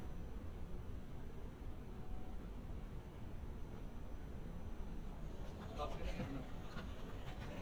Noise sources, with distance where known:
person or small group talking, near

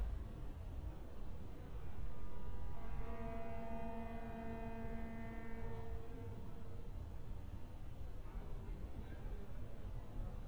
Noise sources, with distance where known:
car horn
person or small group talking

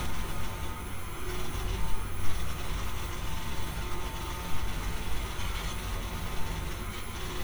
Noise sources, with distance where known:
jackhammer

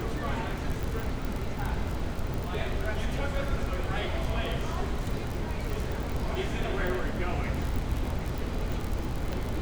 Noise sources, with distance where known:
person or small group talking, near

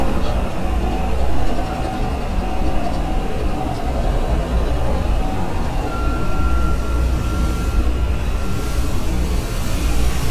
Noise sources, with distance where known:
unidentified impact machinery
reverse beeper, near

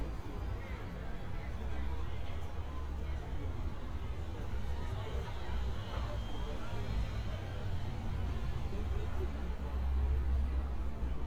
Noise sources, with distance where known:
person or small group talking, far

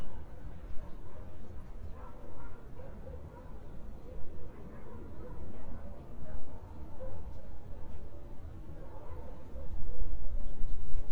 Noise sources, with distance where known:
car horn, far
dog barking or whining, far

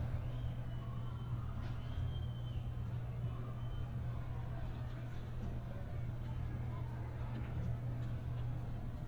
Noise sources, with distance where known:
person or small group shouting, far

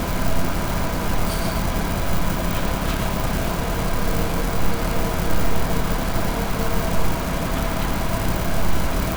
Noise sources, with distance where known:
hoe ram

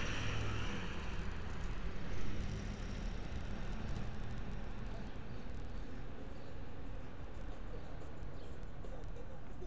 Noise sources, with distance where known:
person or small group talking, far

